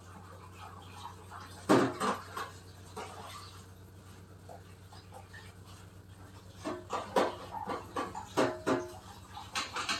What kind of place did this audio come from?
kitchen